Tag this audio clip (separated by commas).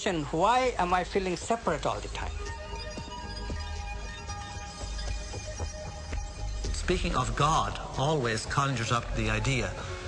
Music, Speech